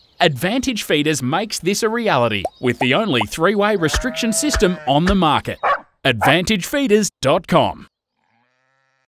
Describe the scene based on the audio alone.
A man narrates, three pop noises followed by three whips of wind, a sheep and a dog both speak